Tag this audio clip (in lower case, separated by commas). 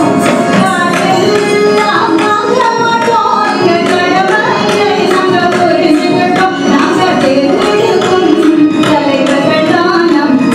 carnatic music